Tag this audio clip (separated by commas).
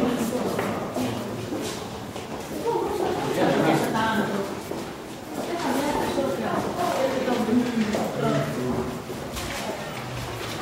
Speech